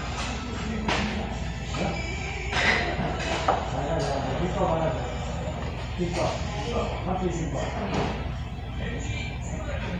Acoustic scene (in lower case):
restaurant